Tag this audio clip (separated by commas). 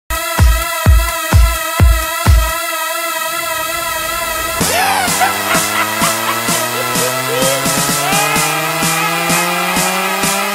House music, Music, Dance music